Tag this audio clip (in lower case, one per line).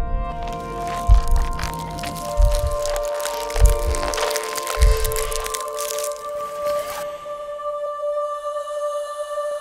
music
crack